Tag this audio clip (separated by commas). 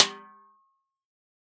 Drum, Snare drum, Musical instrument, Percussion, Music